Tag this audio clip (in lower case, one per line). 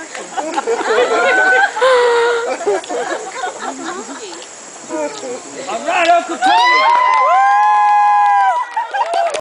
speech